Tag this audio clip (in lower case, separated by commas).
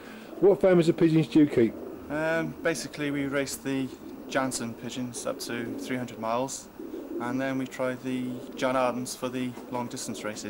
speech, coo, bird